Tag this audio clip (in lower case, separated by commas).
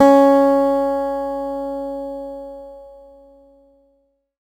music, acoustic guitar, guitar, musical instrument, plucked string instrument